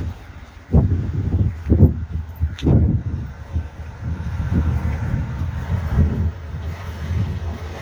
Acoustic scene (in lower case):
residential area